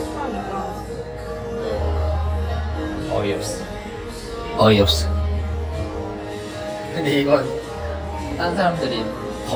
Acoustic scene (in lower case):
cafe